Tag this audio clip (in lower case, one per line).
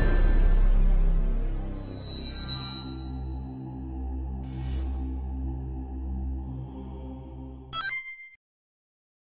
music